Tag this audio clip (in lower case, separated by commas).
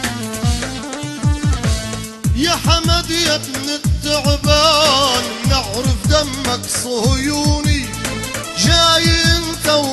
music, soundtrack music